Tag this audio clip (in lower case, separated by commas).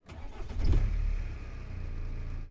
vehicle, motor vehicle (road), engine starting, car, engine